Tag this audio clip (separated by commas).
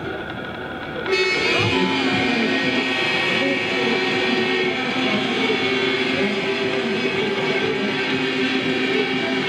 Vehicle, Music